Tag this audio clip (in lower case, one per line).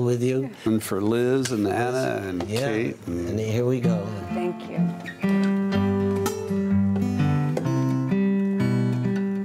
speech
strum
acoustic guitar
music